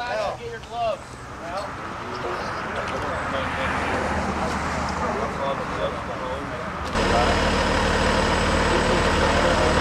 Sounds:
Engine, Vehicle, Speech, Idling

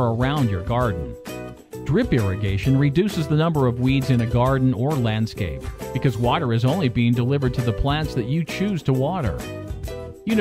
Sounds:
Speech, Music

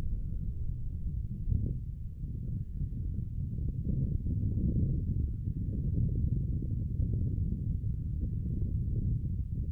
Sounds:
outside, rural or natural, Silence

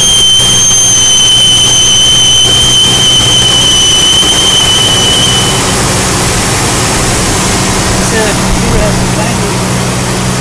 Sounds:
Speech, White noise

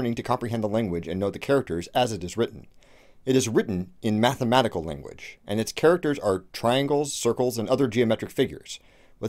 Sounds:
Speech, Narration

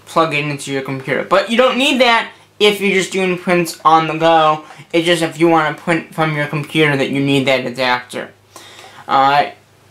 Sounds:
Speech

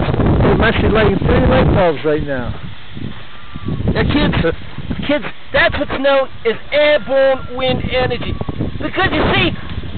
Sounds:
Wind noise (microphone), Wind

